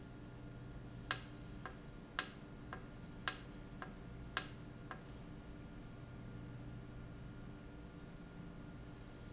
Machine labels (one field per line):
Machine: valve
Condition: normal